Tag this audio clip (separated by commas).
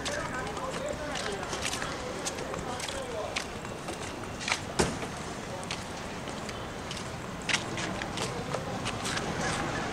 Speech